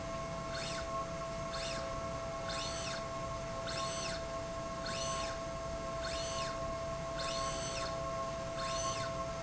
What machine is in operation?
slide rail